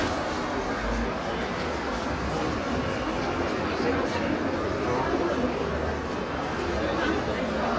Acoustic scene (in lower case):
crowded indoor space